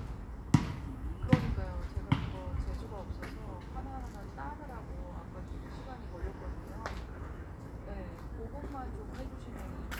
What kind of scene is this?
residential area